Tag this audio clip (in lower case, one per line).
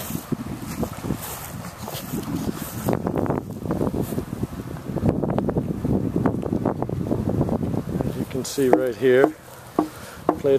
speech